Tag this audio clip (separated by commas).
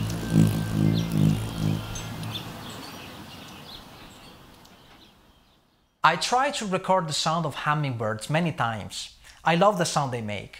Speech